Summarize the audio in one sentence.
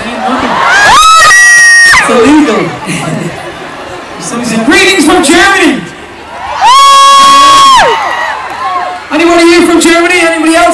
He is talking, crowd is screaming